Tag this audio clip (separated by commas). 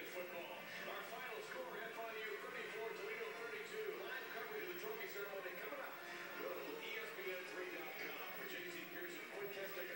Music, Speech